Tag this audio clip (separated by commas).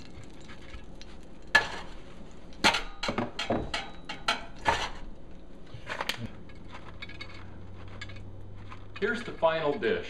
silverware, eating with cutlery